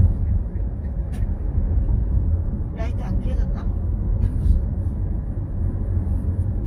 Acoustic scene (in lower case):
car